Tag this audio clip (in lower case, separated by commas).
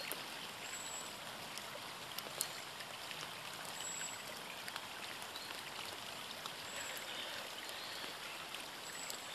raindrop, rain